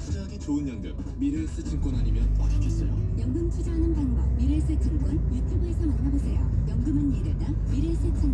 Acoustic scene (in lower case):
car